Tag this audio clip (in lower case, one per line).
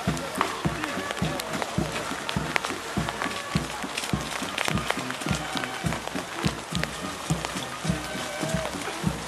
outside, rural or natural
speech
music